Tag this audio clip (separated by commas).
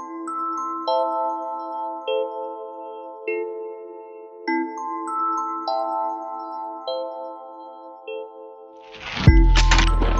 Music